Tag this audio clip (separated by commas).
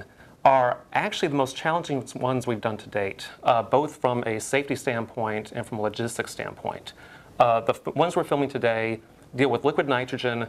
Speech